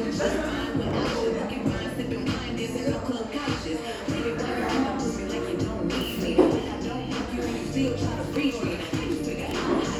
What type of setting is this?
cafe